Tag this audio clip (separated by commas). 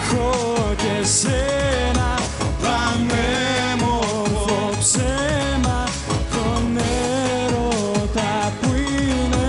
Music, Singing